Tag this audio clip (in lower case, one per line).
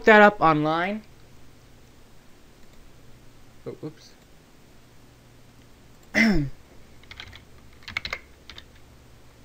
typing
computer keyboard